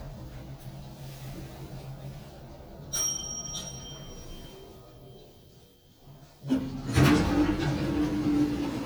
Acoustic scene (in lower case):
elevator